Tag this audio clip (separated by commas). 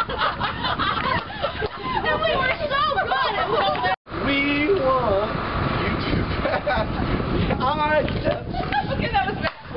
Speech